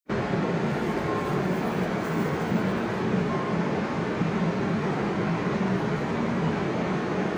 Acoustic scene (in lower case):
subway station